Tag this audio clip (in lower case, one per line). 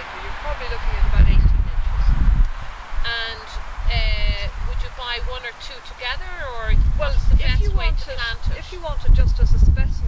outside, rural or natural
speech